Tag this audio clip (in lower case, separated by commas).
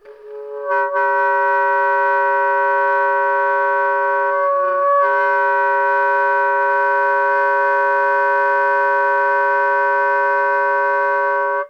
wind instrument, musical instrument, music